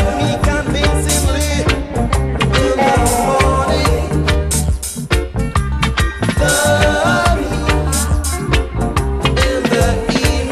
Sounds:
music

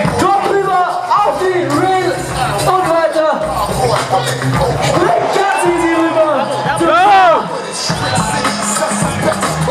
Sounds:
music, speech

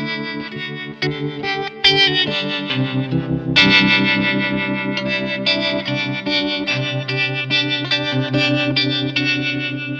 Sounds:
music

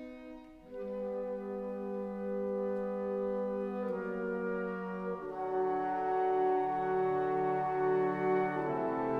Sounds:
musical instrument, music, violin

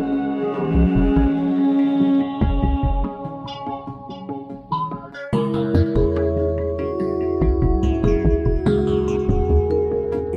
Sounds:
music, new-age music

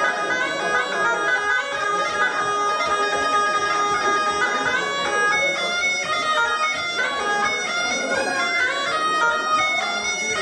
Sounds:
playing bagpipes

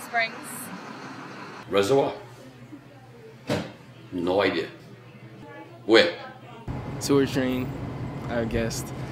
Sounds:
speech

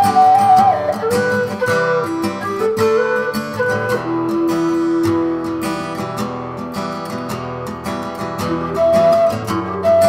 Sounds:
strum, acoustic guitar, plucked string instrument, music, musical instrument, guitar

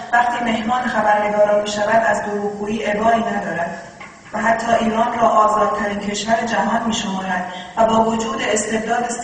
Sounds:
woman speaking, speech

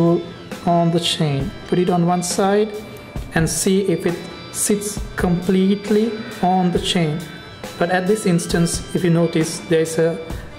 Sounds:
speech, music

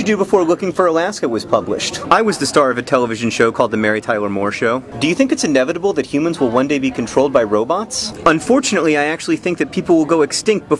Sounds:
speech

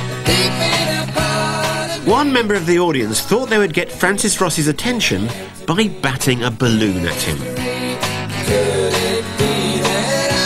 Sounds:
drum, music, drum kit, musical instrument, speech

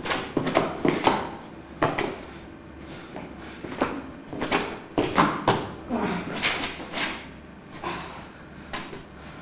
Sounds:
door

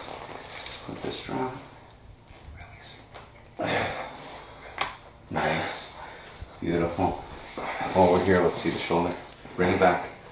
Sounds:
speech

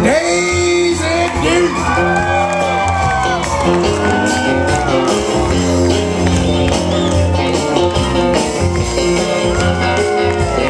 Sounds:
music, male singing

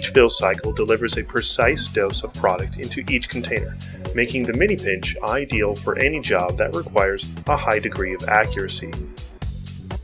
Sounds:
speech, music

